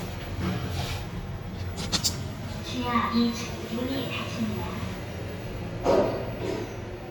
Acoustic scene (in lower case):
elevator